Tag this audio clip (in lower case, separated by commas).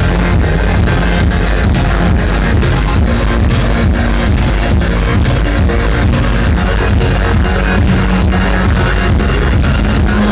music, techno